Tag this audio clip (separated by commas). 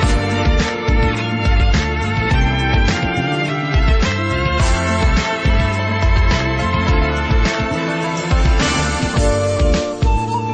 Music